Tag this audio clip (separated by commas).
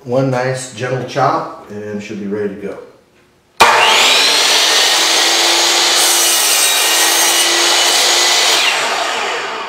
Tools, Power tool